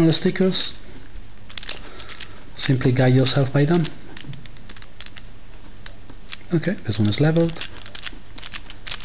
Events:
0.0s-0.8s: male speech
0.0s-9.0s: mechanisms
1.5s-2.2s: gears
2.5s-3.8s: male speech
4.1s-4.4s: gears
4.7s-5.3s: gears
5.7s-5.9s: gears
6.1s-6.5s: gears
6.3s-7.6s: male speech
6.9s-7.8s: gears
7.9s-8.1s: gears
8.3s-8.5s: gears
8.8s-9.0s: gears

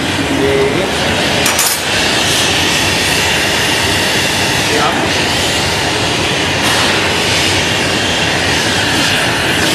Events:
0.0s-9.7s: spray
0.5s-1.5s: male speech
4.7s-5.2s: male speech

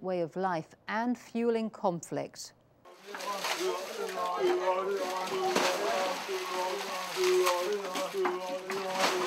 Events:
0.0s-0.6s: woman speaking
0.0s-9.2s: background noise
0.8s-1.1s: woman speaking
1.3s-1.7s: woman speaking
1.8s-2.0s: woman speaking
2.1s-2.5s: woman speaking
2.8s-9.2s: water
3.1s-3.9s: man speaking
3.1s-3.8s: liquid
4.0s-6.2s: man speaking
4.9s-5.5s: liquid
5.5s-6.2s: pour
6.1s-7.8s: liquid
6.3s-9.2s: man speaking
8.8s-9.2s: pour

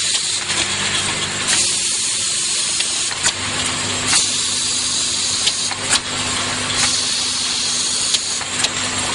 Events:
0.0s-9.1s: liquid
0.0s-9.1s: mechanisms

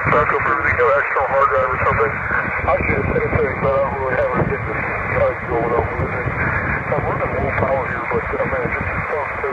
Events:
0.0s-2.1s: male speech
0.0s-9.5s: radio
0.0s-9.5s: wind
1.1s-6.1s: wind noise (microphone)
2.6s-4.7s: male speech
5.1s-6.0s: male speech
6.7s-9.5s: wind noise (microphone)
6.9s-9.5s: male speech

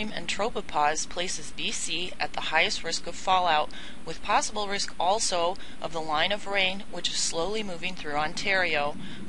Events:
0.0s-3.6s: woman speaking
0.0s-9.2s: mechanisms
3.7s-3.7s: tick
3.7s-3.9s: breathing
4.0s-5.5s: woman speaking
4.9s-4.9s: tick
5.5s-5.6s: tick
5.6s-5.7s: breathing
5.8s-8.9s: woman speaking
7.8s-7.9s: tick
9.0s-9.2s: breathing

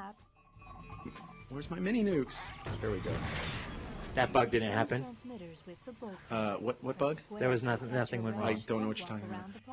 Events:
0.0s-0.2s: woman speaking
0.0s-9.7s: video game sound
0.2s-1.7s: music
0.9s-1.2s: generic impact sounds
1.5s-2.5s: male speech
1.5s-9.7s: conversation
2.2s-4.1s: sound effect
2.8s-3.3s: male speech
4.1s-5.1s: male speech
4.5s-5.7s: woman speaking
5.8s-6.2s: woman speaking
6.2s-7.2s: male speech
6.9s-9.7s: woman speaking
7.3s-9.5s: male speech
9.2s-9.7s: ratchet

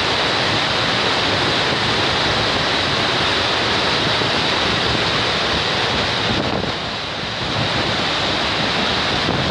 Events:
0.0s-9.5s: waterfall
6.2s-6.8s: wind noise (microphone)

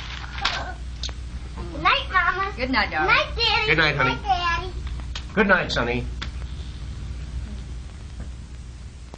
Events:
0.0s-9.1s: background noise
0.2s-0.5s: generic impact sounds
0.3s-0.7s: human voice
1.0s-1.1s: generic impact sounds
1.5s-1.8s: human voice
1.8s-2.5s: child speech
1.8s-6.0s: conversation
2.5s-3.3s: woman speaking
3.3s-4.8s: child speech
3.6s-4.3s: man speaking
5.1s-5.2s: generic impact sounds
5.3s-6.1s: man speaking
6.1s-6.2s: generic impact sounds
8.1s-8.2s: generic impact sounds
9.1s-9.1s: generic impact sounds

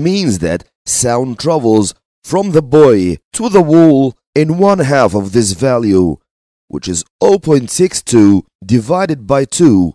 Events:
0.0s-0.6s: man speaking
0.8s-1.9s: man speaking
2.2s-3.1s: man speaking
3.3s-4.1s: man speaking
4.3s-6.2s: man speaking
6.6s-7.0s: man speaking
7.2s-8.4s: man speaking
8.6s-9.9s: man speaking

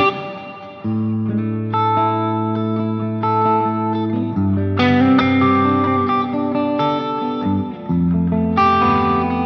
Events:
0.0s-9.4s: music

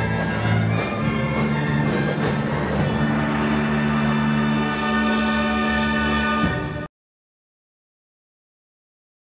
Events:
0.0s-6.9s: music

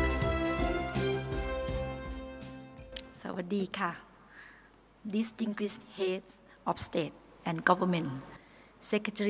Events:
0.0s-3.2s: music
0.0s-9.2s: background noise
2.7s-3.0s: single-lens reflex camera
3.2s-4.0s: woman speaking
4.2s-4.7s: breathing
5.0s-6.5s: woman speaking
6.6s-7.1s: woman speaking
7.4s-8.4s: woman speaking
8.3s-8.8s: breathing
8.8s-9.2s: woman speaking

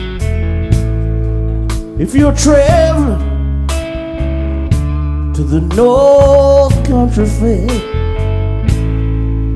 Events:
0.0s-9.5s: music
1.9s-3.3s: male singing
5.3s-7.8s: male singing

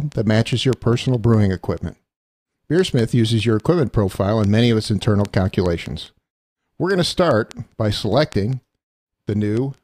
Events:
0.0s-1.9s: man speaking
0.1s-0.1s: clicking
0.7s-0.7s: clicking
1.2s-1.3s: clicking
1.7s-1.8s: clicking
2.7s-6.1s: man speaking
2.7s-2.8s: clicking
3.5s-3.6s: clicking
3.8s-3.9s: clicking
4.4s-4.5s: clicking
5.2s-5.3s: clicking
5.6s-5.7s: clicking
5.8s-5.9s: clicking
6.0s-6.1s: clicking
6.8s-7.6s: man speaking
7.5s-7.5s: clicking
7.7s-7.7s: clicking
7.8s-8.6s: man speaking
8.3s-8.3s: clicking
8.5s-8.5s: clicking
8.7s-8.8s: clicking
9.3s-9.7s: man speaking
9.5s-9.6s: clicking
9.7s-9.8s: clicking

